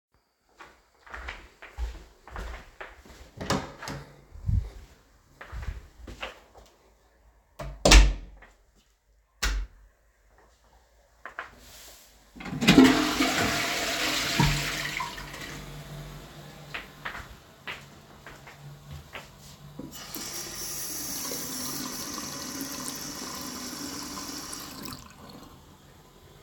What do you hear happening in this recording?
I walked down my hallway, opened my bathroom door then stepped in and closed the door. I then turned on the light, flushed the toilet, then walked to and turned on the sink.